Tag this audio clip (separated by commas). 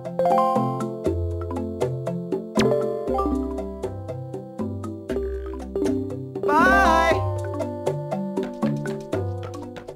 Speech, Music